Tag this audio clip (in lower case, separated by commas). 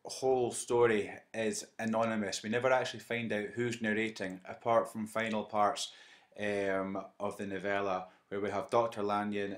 speech